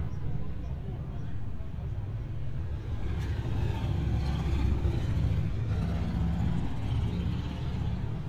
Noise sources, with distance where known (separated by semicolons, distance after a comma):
medium-sounding engine, near